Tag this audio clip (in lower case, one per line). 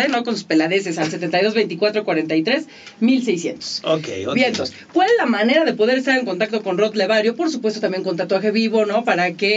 speech